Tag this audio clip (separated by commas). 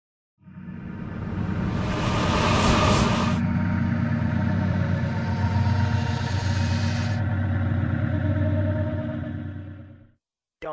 Whoosh